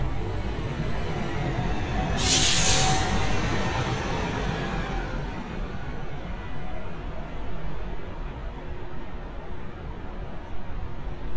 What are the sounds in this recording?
large-sounding engine